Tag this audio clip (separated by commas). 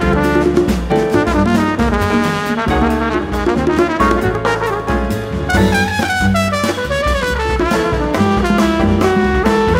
Jazz, Drum, Percussion, Musical instrument, Music